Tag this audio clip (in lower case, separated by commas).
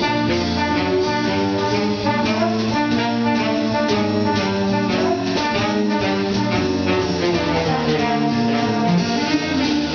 music, orchestra, jazz, string section